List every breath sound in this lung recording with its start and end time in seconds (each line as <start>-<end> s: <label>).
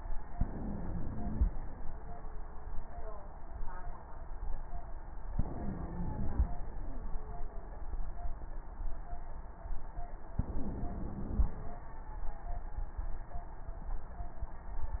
0.35-1.50 s: inhalation
0.35-1.50 s: wheeze
5.36-6.52 s: inhalation
5.36-6.52 s: wheeze
10.39-11.55 s: inhalation
10.39-11.55 s: wheeze